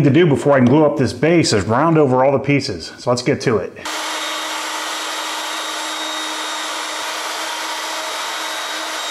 A man speaking followed by loud mechanical humming